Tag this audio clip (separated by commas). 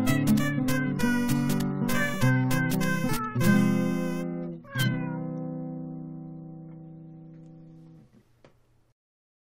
Cat, Meow, Music